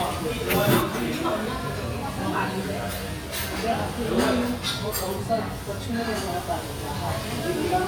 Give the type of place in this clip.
restaurant